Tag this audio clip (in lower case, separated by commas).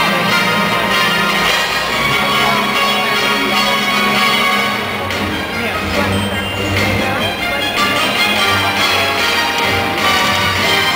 music, speech